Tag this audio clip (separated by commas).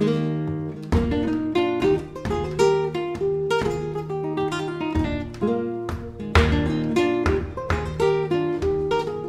Plucked string instrument, Musical instrument, Guitar, Music, Strum